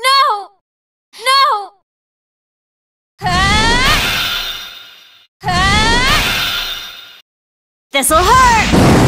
A young child screams as he goes down with a loud swoosh